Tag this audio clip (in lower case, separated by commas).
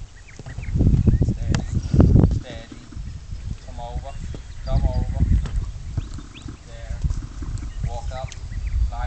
speech, pets, animal